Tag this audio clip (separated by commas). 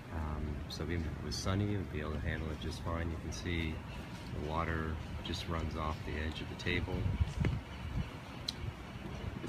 Speech